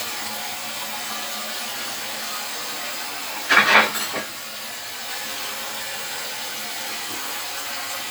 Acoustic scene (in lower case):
kitchen